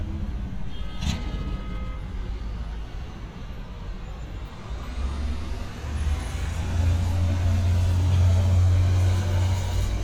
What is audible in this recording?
engine of unclear size